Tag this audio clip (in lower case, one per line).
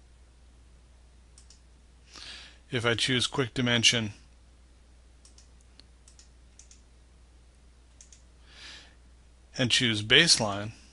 speech